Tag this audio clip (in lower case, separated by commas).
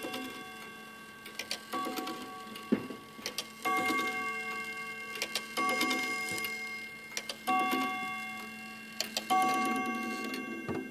tick-tock, clock